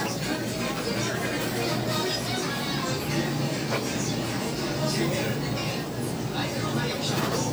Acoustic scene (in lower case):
crowded indoor space